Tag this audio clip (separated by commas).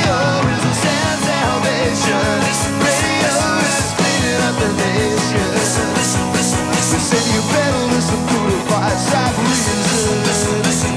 Music